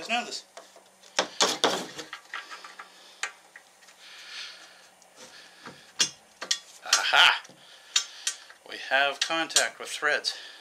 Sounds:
Speech

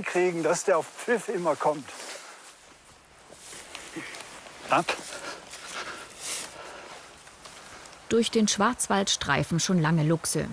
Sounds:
Speech

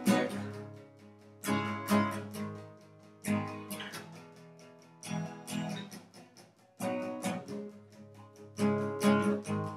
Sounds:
Music

